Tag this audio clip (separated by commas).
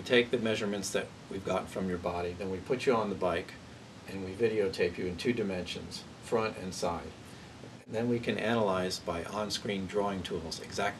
Speech